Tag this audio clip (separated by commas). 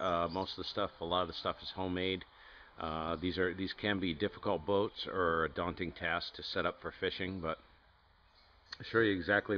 Speech